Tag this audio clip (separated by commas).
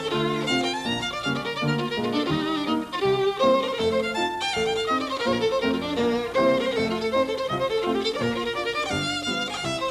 Violin, Musical instrument, Music